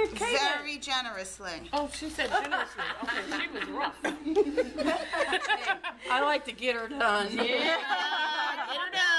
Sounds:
speech

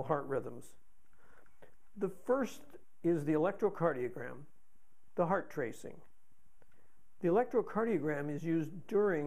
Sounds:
speech

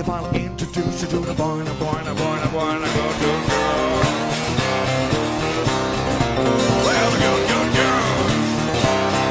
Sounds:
music
musical instrument

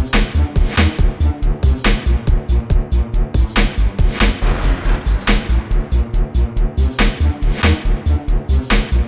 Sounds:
soundtrack music
music

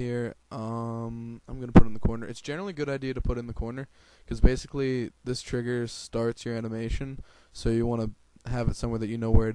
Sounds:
speech

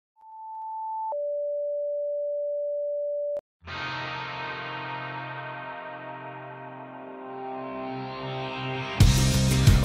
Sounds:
music

